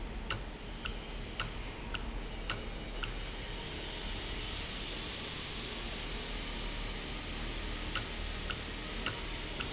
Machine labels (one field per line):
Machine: valve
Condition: normal